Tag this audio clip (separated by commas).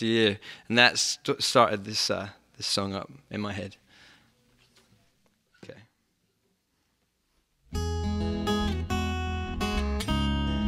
Plucked string instrument, Guitar, Speech, Music, Musical instrument, Acoustic guitar